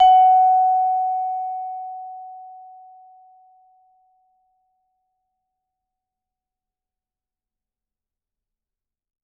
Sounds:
mallet percussion, percussion, musical instrument, music

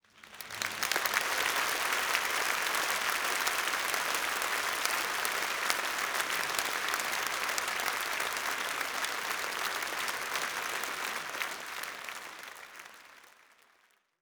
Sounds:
human group actions, applause

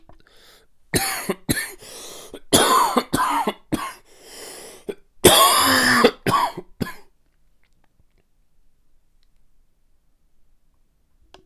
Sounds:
respiratory sounds, cough

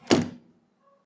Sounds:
vehicle, motor vehicle (road)

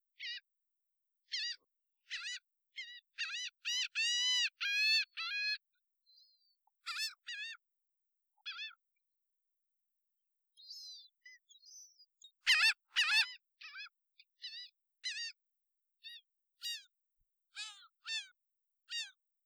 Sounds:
animal, gull, wild animals, bird

